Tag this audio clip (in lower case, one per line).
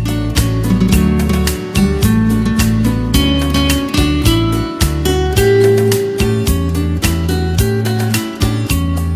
strum
musical instrument
plucked string instrument
electric guitar
music
guitar